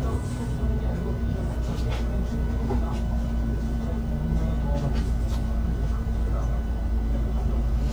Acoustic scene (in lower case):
bus